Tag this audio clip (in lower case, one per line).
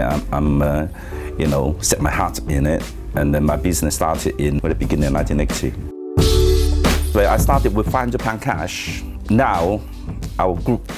music
speech